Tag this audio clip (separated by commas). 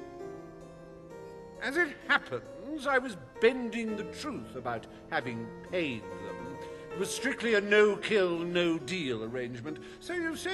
Harpsichord